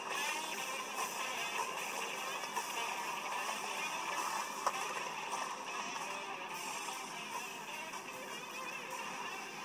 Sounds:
Music

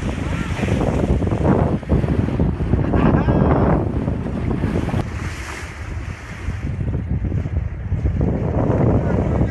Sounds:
Wind noise (microphone), Ocean, Wind, surf

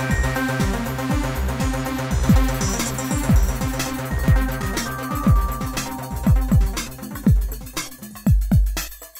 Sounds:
Music

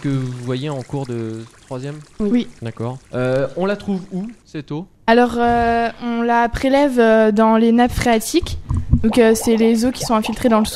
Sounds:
Water, Speech

